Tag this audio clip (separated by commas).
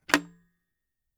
Telephone, Alarm